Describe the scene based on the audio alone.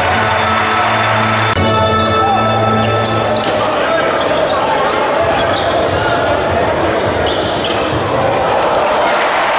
Music plays, a crowd is talking, squeaking occurs, and the crowd cheers